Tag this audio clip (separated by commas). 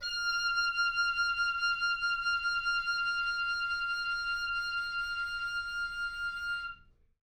Musical instrument, Wind instrument, Music